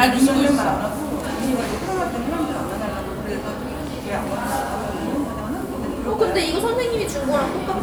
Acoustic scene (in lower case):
cafe